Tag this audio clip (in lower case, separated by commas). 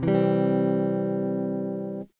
strum, musical instrument, music, guitar, electric guitar, plucked string instrument